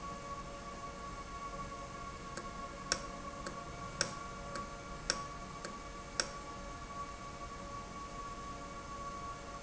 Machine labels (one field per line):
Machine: valve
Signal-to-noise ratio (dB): 0 dB